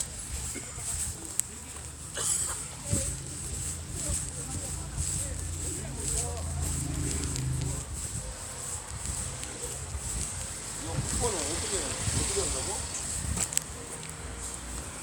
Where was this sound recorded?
in a residential area